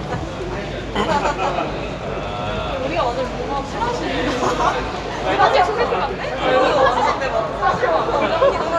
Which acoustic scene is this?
crowded indoor space